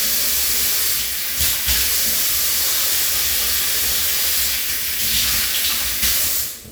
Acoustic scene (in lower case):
restroom